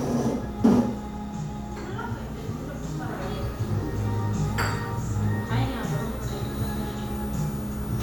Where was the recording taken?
in a cafe